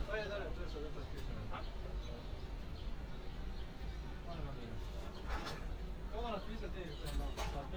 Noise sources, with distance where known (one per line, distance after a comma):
person or small group talking, near